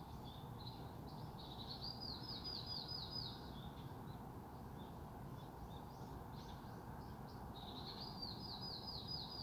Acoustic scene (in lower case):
park